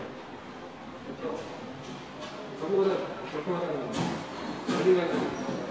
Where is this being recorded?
in a subway station